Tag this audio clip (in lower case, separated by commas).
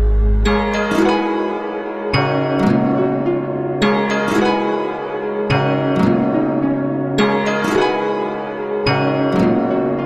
music